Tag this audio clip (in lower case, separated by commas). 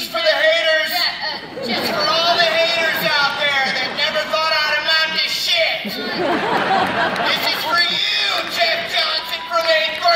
woman speaking, narration, man speaking, speech